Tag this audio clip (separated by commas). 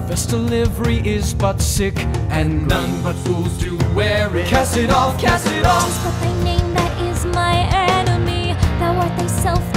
Music